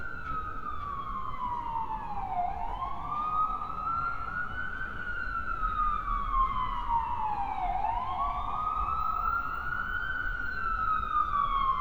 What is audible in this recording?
siren